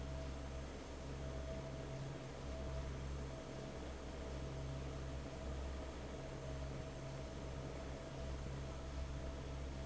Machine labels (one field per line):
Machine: fan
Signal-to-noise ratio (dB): 6 dB